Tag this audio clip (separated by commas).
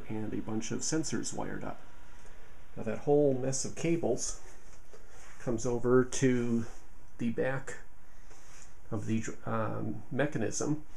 Speech